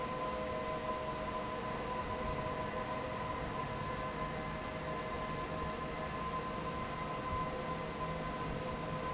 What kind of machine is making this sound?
fan